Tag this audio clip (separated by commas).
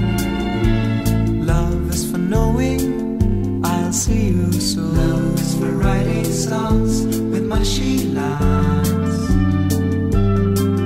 Male singing, Music